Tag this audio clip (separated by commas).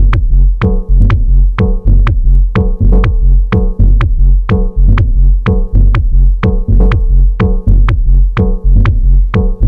Music, Sampler, Hip hop music